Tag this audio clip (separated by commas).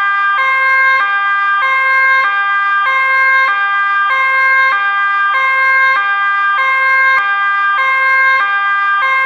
Police car (siren), Siren